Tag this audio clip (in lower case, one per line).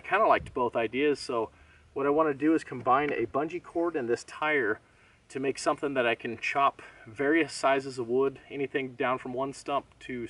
speech